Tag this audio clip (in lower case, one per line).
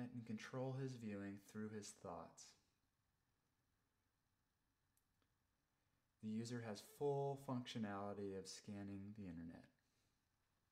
speech